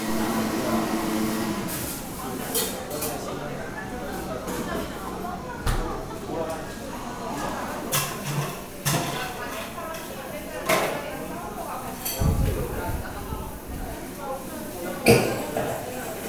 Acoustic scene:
cafe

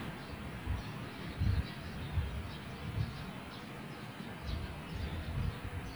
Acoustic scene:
park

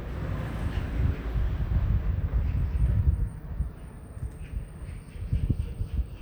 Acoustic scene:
residential area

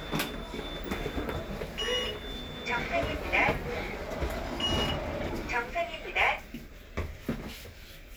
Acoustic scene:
elevator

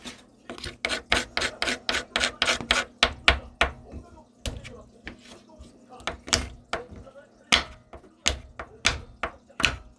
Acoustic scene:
kitchen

